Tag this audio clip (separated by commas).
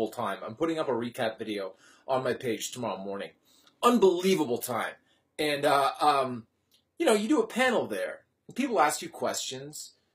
Speech